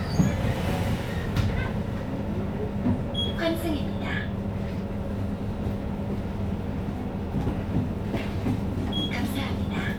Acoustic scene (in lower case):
bus